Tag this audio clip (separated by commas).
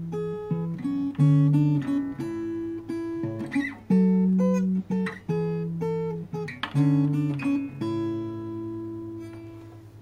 Music